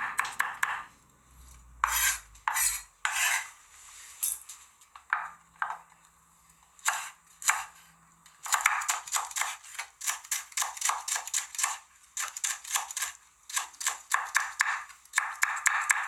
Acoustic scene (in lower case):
kitchen